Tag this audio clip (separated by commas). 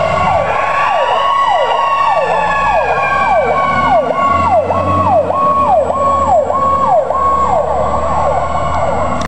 Vehicle